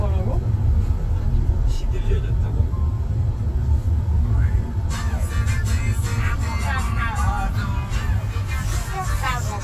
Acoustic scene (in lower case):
car